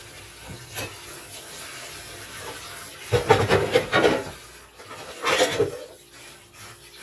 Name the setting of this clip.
kitchen